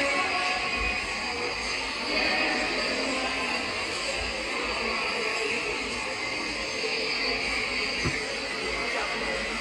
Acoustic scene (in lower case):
subway station